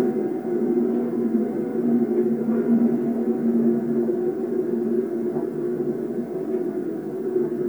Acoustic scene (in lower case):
subway train